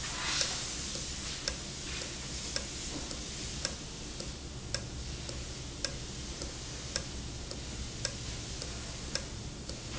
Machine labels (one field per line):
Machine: valve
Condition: normal